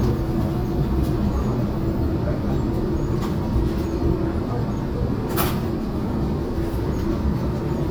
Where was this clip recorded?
on a subway train